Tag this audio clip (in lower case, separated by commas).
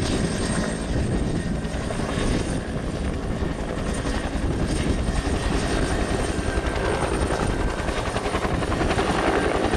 helicopter, aircraft, vehicle